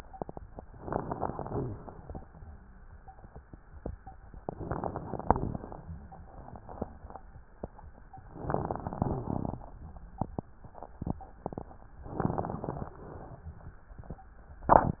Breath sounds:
Inhalation: 0.69-1.68 s, 4.36-5.21 s, 8.31-8.97 s, 12.14-12.91 s
Exhalation: 1.70-2.31 s, 5.22-5.85 s, 8.98-9.65 s, 12.91-13.47 s
Wheeze: 8.98-9.28 s
Crackles: 0.69-1.68 s, 1.70-2.31 s, 4.36-5.21 s, 5.22-5.85 s, 8.31-8.97 s, 12.14-12.91 s

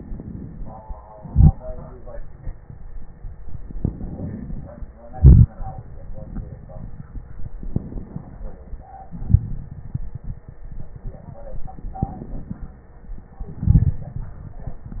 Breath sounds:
Inhalation: 3.74-5.01 s, 7.69-8.92 s, 11.97-12.86 s
Exhalation: 5.01-5.86 s, 9.03-9.92 s, 13.51-14.41 s
Crackles: 9.03-9.92 s, 11.97-12.86 s, 13.51-14.41 s

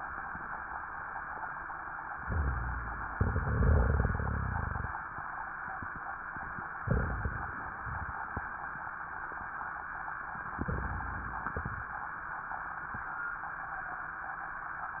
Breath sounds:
Inhalation: 2.22-3.13 s, 6.81-7.72 s, 10.62-11.54 s
Exhalation: 7.80-8.20 s, 11.54-11.94 s
Crackles: 2.22-3.13 s, 6.81-7.72 s, 10.62-11.54 s

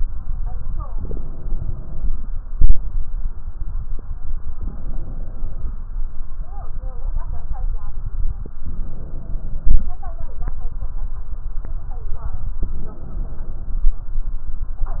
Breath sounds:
Inhalation: 0.90-2.40 s, 4.58-5.82 s, 8.57-9.92 s, 12.61-13.96 s
Crackles: 0.85-2.36 s

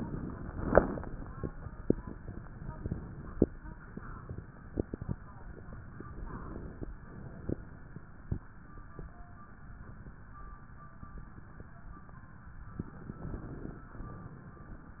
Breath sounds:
Inhalation: 0.78-1.53 s, 5.99-6.86 s, 12.78-13.86 s
Exhalation: 0.00-0.75 s, 2.72-3.61 s, 6.99-7.96 s, 13.86-15.00 s

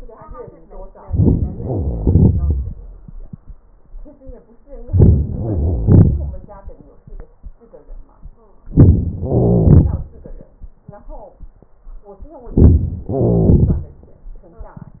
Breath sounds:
Inhalation: 1.03-1.56 s, 4.68-5.40 s, 8.69-9.24 s, 12.25-13.07 s
Exhalation: 1.59-3.24 s, 5.42-6.74 s, 9.27-10.64 s, 13.09-14.50 s
Crackles: 1.03-1.56 s, 1.59-2.68 s, 4.68-5.40 s, 5.42-6.32 s, 8.69-9.24 s, 9.27-10.08 s, 12.25-13.07 s, 13.09-13.85 s

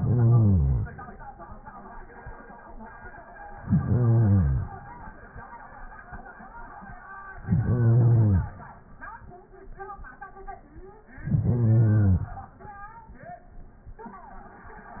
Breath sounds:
Inhalation: 0.00-0.93 s, 3.54-4.75 s, 7.38-8.59 s, 11.11-12.31 s

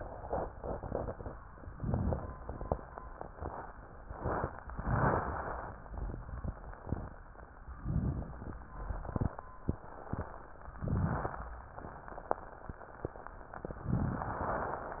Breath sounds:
Inhalation: 1.67-2.37 s, 7.80-8.50 s, 10.76-11.46 s

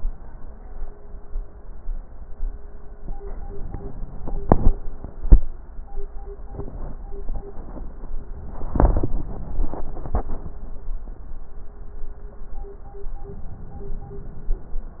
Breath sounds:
Inhalation: 3.49-4.93 s, 13.31-14.75 s

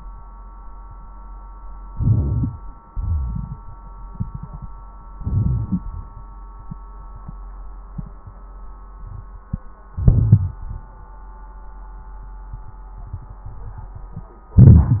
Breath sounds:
Inhalation: 1.93-2.56 s, 5.15-5.79 s, 9.94-10.58 s, 14.58-15.00 s
Exhalation: 2.93-3.57 s, 10.57-10.94 s
Crackles: 1.93-2.56 s, 9.94-10.58 s

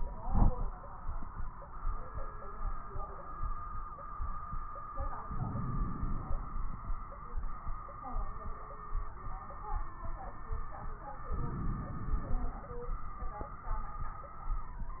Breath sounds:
Inhalation: 5.27-6.40 s, 11.35-12.48 s
Crackles: 5.27-6.40 s, 11.35-12.48 s

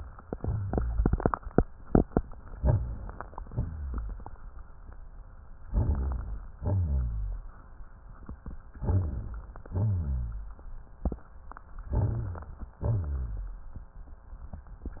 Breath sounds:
Inhalation: 2.55-3.42 s, 5.68-6.60 s, 8.77-9.69 s, 11.95-12.83 s
Exhalation: 3.41-4.44 s, 6.61-7.51 s, 9.76-10.63 s, 12.81-13.69 s
Rhonchi: 3.51-4.36 s, 5.69-6.51 s, 6.57-7.52 s, 8.78-9.43 s, 9.69-10.57 s, 11.87-12.74 s, 12.81-13.69 s
Crackles: 3.40-4.45 s, 5.68-6.59 s

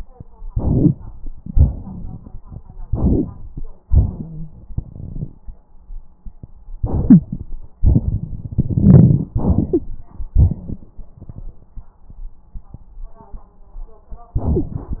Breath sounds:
Inhalation: 0.49-1.14 s, 2.87-3.64 s, 6.78-7.52 s, 9.41-10.27 s
Exhalation: 1.44-2.85 s, 3.87-5.56 s, 7.79-9.28 s
Wheeze: 3.87-4.54 s, 7.09-7.20 s, 9.70-9.81 s
Crackles: 7.79-9.28 s

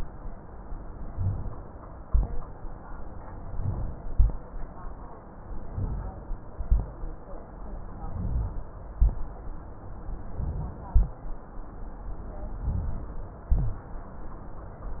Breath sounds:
Inhalation: 1.06-1.65 s, 3.38-3.97 s, 5.64-6.22 s, 8.03-8.62 s, 10.32-10.91 s, 12.58-13.15 s
Exhalation: 2.03-2.62 s, 3.98-4.57 s, 6.53-7.12 s, 8.97-9.56 s, 10.91-11.31 s, 13.47-13.93 s
Rhonchi: 8.03-8.62 s, 13.47-13.93 s

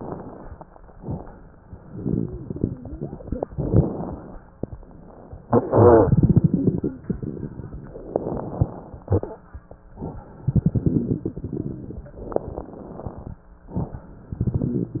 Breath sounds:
Inhalation: 3.55-4.59 s, 8.10-9.07 s, 12.29-13.34 s
Exhalation: 1.92-3.42 s, 10.44-12.01 s
Wheeze: 1.92-3.42 s
Crackles: 3.55-4.59 s, 10.44-12.01 s, 12.29-13.34 s

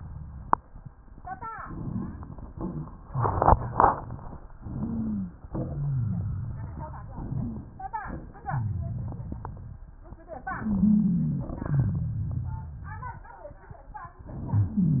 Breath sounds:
Inhalation: 1.54-2.49 s, 4.63-5.41 s, 7.16-7.99 s, 10.55-11.52 s
Exhalation: 2.56-3.07 s, 5.49-7.15 s, 8.45-9.85 s, 11.59-13.24 s
Wheeze: 4.63-5.41 s, 5.49-7.15 s, 7.36-7.70 s, 8.45-9.20 s, 10.55-11.52 s, 11.59-13.24 s
Rhonchi: 2.56-3.07 s

